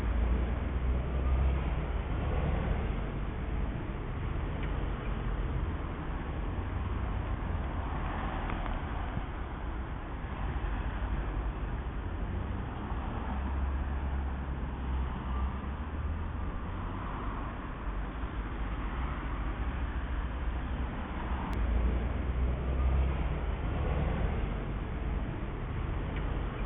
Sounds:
motor vehicle (road)
vehicle
traffic noise

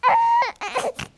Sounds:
crying
human voice

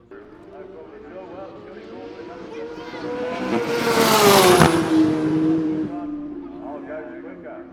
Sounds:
engine
motor vehicle (road)
vehicle
motorcycle

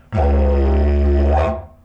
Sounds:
musical instrument
music

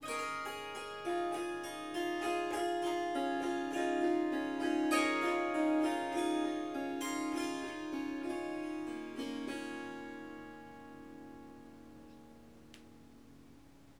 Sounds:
music
musical instrument
harp

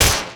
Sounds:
gunshot
explosion

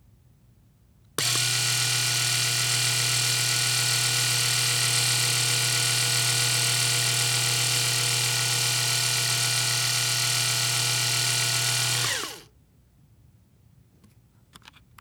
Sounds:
home sounds

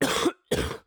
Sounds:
cough
respiratory sounds

